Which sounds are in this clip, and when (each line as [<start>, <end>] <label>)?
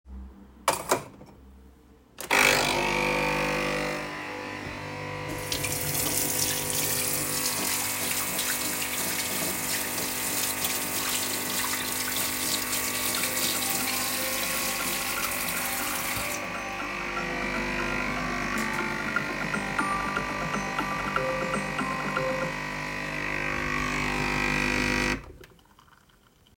[0.47, 1.24] cutlery and dishes
[2.16, 25.21] coffee machine
[5.35, 16.43] running water
[13.29, 22.54] phone ringing